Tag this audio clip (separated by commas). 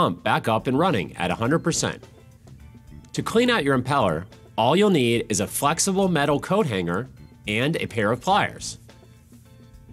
Speech, Music